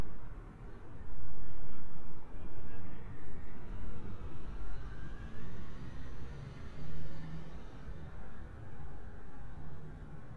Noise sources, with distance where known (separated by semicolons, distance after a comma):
engine of unclear size, far; unidentified human voice, far